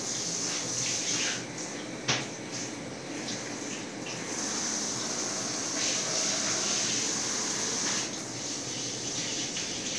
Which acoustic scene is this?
restroom